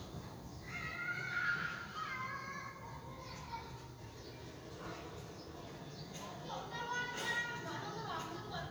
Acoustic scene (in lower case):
residential area